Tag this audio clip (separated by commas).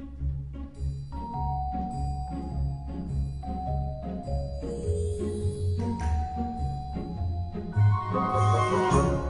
Music